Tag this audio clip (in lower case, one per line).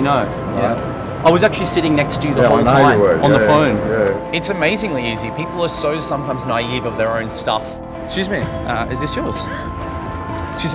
music
speech